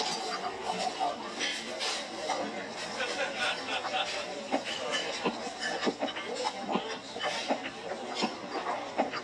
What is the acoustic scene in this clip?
restaurant